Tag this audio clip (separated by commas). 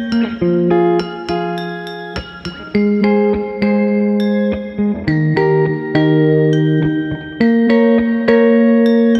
Electric guitar, Music, Strum, Plucked string instrument, Guitar, Musical instrument